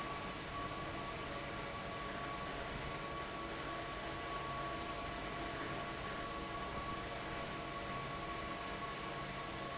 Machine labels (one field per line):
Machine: fan